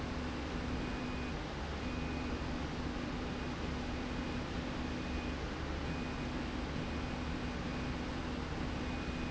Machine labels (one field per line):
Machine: slide rail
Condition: normal